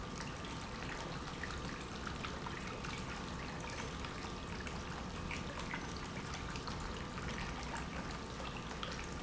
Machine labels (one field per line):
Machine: pump